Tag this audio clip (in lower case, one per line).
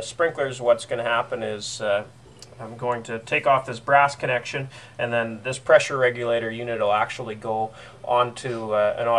speech